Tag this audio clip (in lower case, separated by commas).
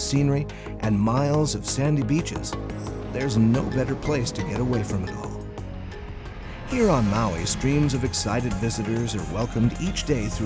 music, speech